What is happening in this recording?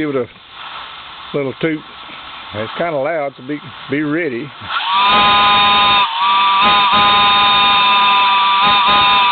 There is a hissing sound, a man talking, and then a small train whistle sound